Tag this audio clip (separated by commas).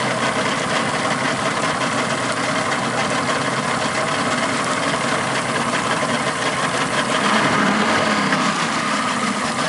Water vehicle, Motorboat, Vehicle